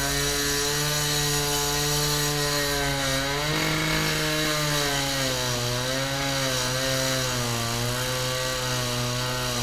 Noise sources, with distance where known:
large rotating saw, near

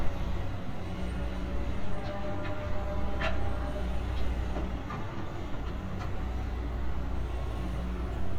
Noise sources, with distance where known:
medium-sounding engine

